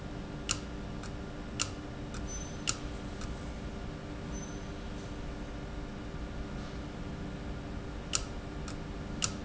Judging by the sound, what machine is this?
valve